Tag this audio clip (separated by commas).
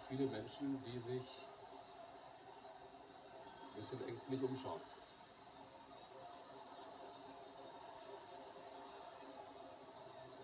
Speech